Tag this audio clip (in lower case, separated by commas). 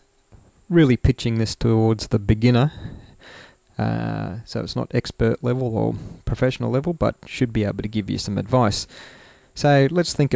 speech